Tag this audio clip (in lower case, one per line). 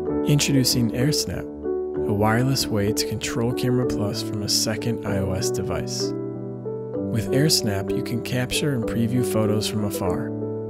speech
music